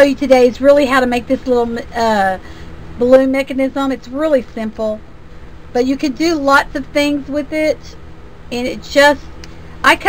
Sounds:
speech

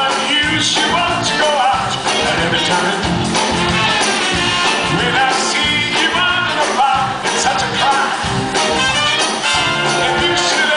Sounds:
music, rhythm and blues, exciting music

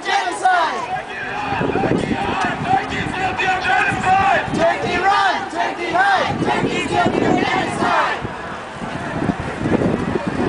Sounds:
speech

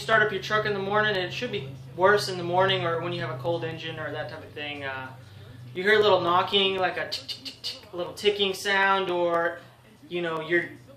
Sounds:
speech

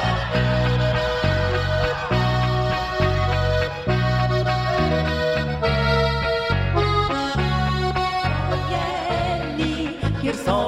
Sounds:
music

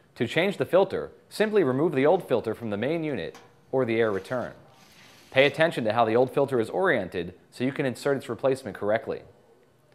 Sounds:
speech

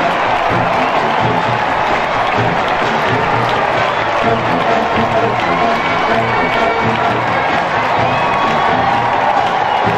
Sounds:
people marching

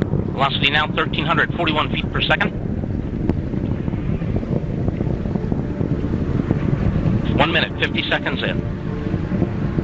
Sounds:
wind noise (microphone), wind

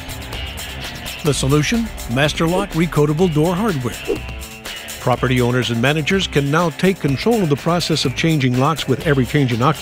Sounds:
speech, music

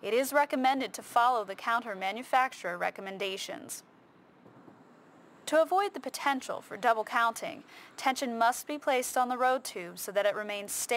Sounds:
speech

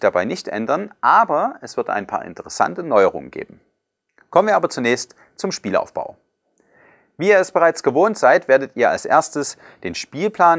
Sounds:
speech

